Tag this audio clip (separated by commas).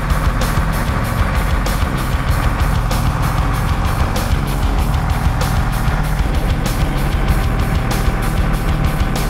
Music